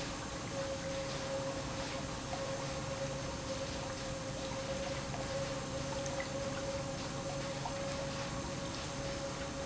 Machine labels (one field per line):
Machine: pump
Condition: normal